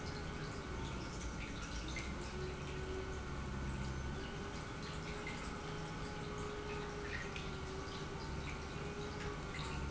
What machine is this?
pump